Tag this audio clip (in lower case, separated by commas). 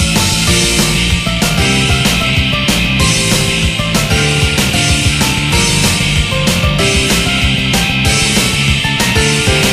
music, funk